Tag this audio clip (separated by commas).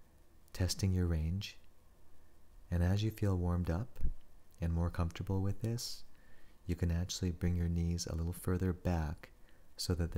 Speech